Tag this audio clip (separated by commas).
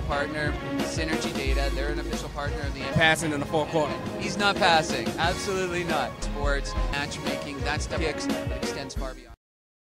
Speech, Music